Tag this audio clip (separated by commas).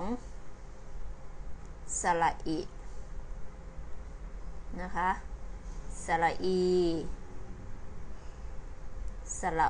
Speech